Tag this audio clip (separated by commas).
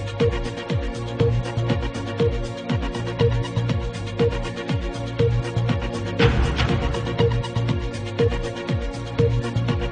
Television, Music